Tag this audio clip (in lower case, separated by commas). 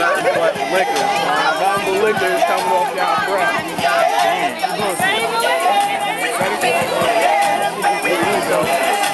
music, speech